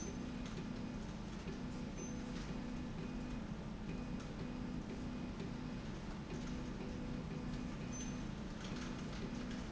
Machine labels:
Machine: slide rail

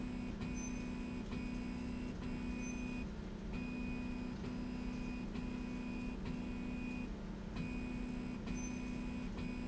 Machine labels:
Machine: slide rail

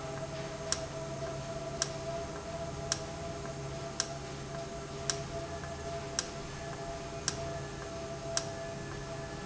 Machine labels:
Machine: valve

